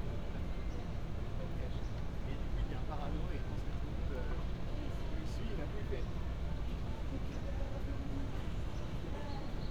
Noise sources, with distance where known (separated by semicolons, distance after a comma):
person or small group talking